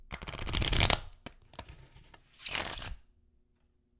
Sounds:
home sounds

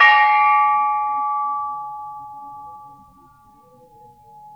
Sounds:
Music, Gong, Percussion, Musical instrument

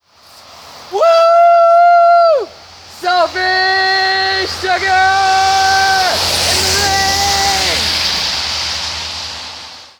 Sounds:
Human voice, Shout, Yell

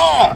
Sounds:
Human voice, Shout

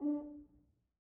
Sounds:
Music, Brass instrument, Musical instrument

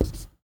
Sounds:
home sounds, Writing

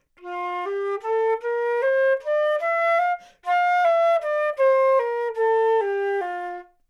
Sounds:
Musical instrument, Music, Wind instrument

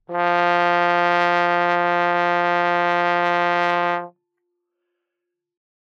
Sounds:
Musical instrument, Brass instrument, Music

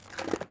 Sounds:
Skateboard, Vehicle

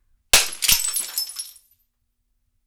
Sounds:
Shatter, Glass

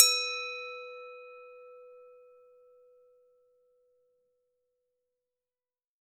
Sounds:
Glass

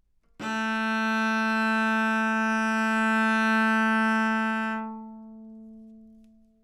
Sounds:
Musical instrument, Bowed string instrument, Music

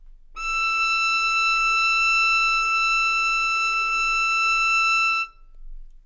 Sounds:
Music, Bowed string instrument, Musical instrument

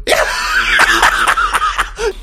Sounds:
Human voice, Laughter

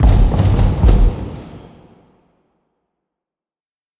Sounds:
Explosion, Fireworks

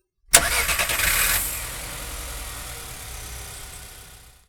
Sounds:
Vehicle, Car, Engine, Motor vehicle (road)

